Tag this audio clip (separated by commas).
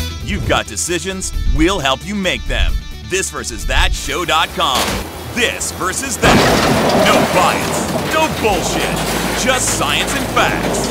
Speech, Music